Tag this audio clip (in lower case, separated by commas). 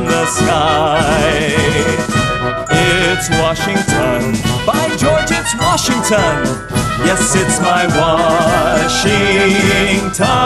music, outside, urban or man-made